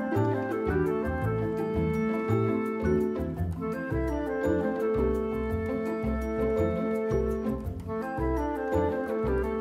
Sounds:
typing on typewriter

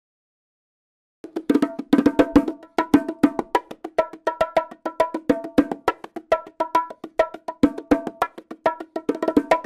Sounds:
playing bongo

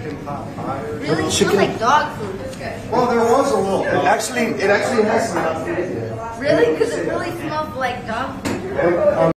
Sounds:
Speech

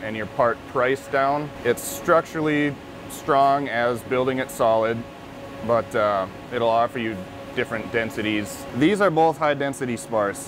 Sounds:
Speech

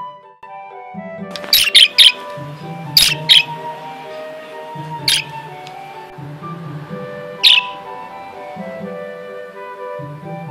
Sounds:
warbler chirping

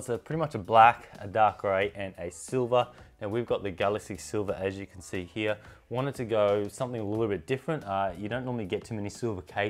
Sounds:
Speech

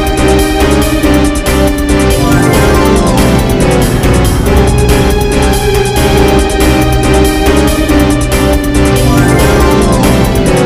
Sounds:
Music

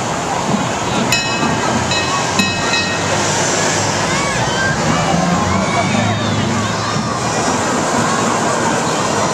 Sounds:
Speech, Engine, Vehicle

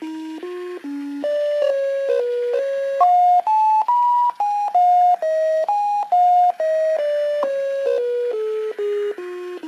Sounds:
Techno, Electronica, Music

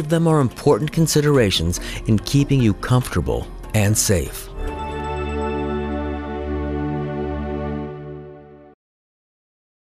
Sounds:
Music, Speech

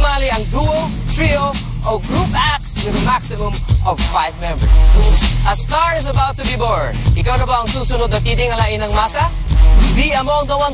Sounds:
Speech, Music

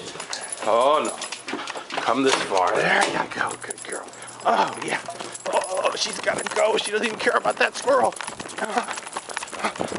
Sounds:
Speech

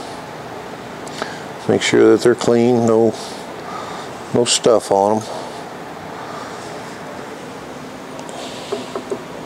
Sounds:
Speech, Engine

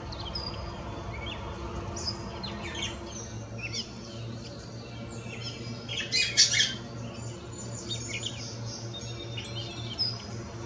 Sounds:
baltimore oriole calling

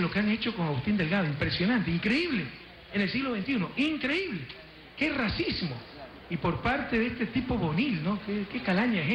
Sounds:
Speech

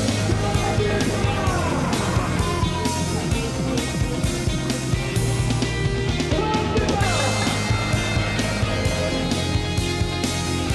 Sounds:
Music

